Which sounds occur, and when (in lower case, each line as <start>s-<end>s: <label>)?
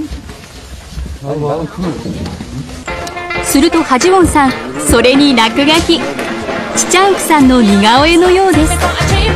0.0s-0.4s: human sounds
0.0s-3.3s: mechanisms
1.1s-2.0s: man speaking
1.4s-1.9s: woman speaking
2.0s-2.4s: generic impact sounds
2.2s-2.3s: tick
2.8s-9.3s: music
3.0s-3.1s: tick
3.4s-6.1s: woman speaking
4.4s-4.5s: tick
4.5s-5.0s: man speaking
5.9s-6.9s: man speaking
6.7s-8.7s: woman speaking
8.5s-9.3s: female singing